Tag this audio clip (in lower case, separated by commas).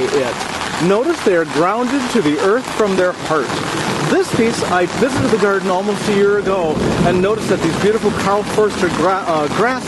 speech